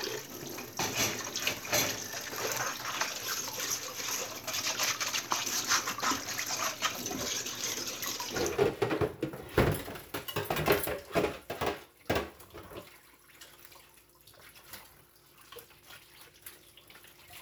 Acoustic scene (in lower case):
kitchen